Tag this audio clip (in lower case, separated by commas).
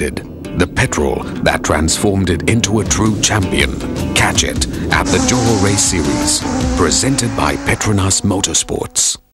vehicle, music, speech, car